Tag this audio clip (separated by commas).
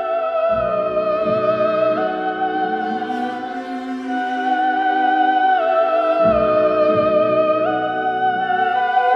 playing theremin